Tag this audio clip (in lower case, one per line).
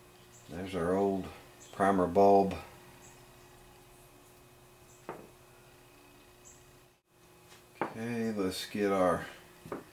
wood
speech
inside a small room